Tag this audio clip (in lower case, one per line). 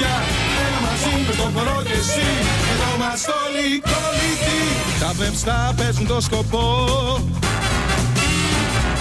music